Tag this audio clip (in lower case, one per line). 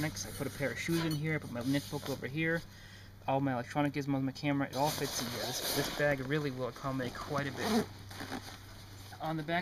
speech
outside, rural or natural